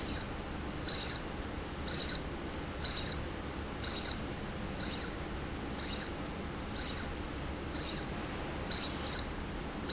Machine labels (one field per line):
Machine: slide rail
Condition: abnormal